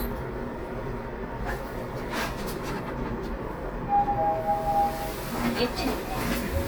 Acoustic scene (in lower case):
elevator